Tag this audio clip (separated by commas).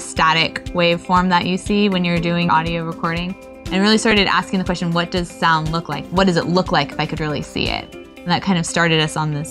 Speech, Music